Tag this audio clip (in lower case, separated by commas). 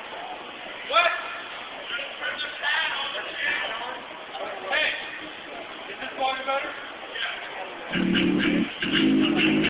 speech, music